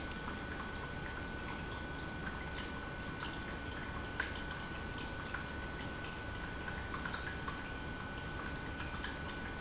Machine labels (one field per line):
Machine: pump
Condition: normal